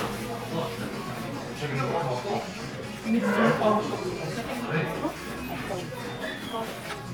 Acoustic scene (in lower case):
crowded indoor space